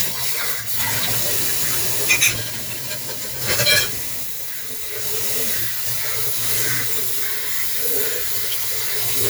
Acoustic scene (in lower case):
kitchen